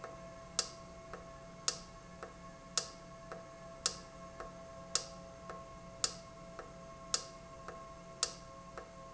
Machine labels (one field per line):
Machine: valve